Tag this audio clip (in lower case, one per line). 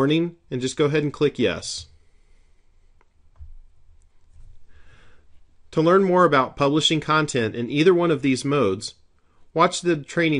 speech